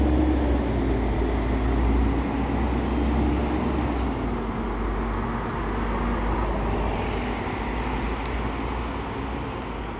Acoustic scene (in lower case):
street